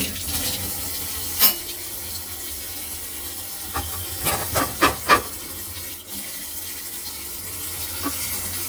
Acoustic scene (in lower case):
kitchen